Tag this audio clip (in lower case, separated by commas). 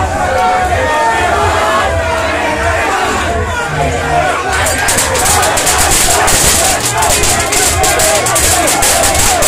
music, speech